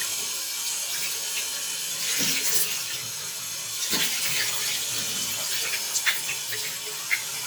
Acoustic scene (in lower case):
restroom